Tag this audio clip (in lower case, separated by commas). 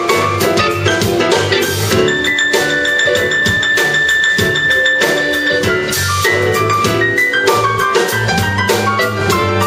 drum kit, musical instrument, drum, music